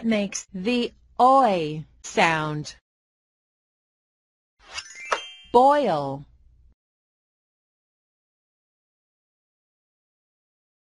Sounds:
Speech, Music

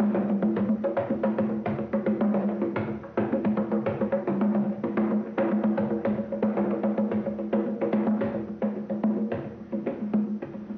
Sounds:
playing congas

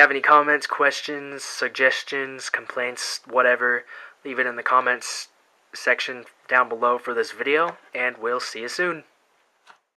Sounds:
Speech

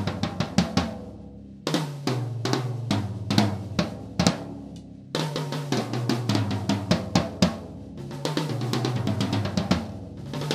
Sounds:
Music, Musical instrument, Drum kit, Drum, Bass drum

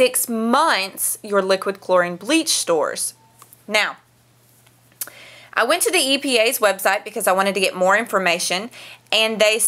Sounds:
Speech

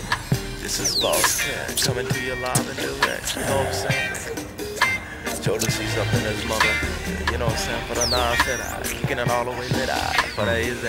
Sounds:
Singing, Music

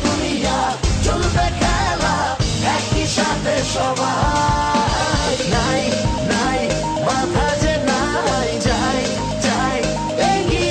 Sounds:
Music, Pop music

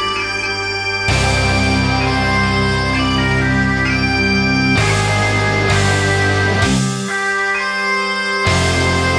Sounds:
playing bagpipes

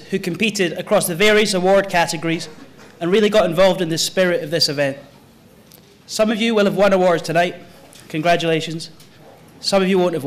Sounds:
Speech, Narration, man speaking

